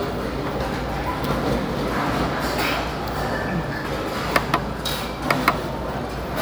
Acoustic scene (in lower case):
restaurant